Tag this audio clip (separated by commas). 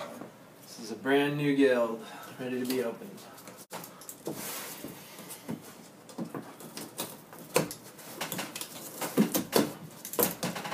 Speech